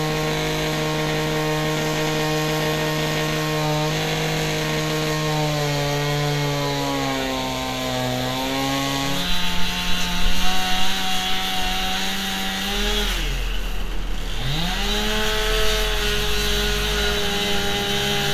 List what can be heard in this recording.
unidentified powered saw